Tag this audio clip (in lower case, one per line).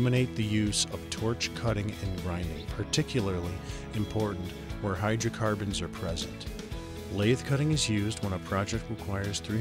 speech
music